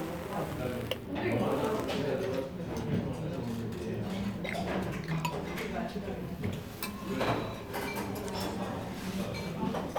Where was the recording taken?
in a crowded indoor space